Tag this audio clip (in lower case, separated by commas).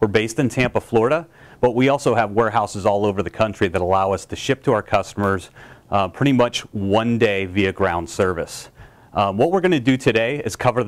speech